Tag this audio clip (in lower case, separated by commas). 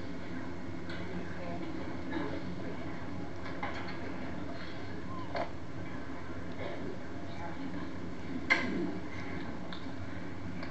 speech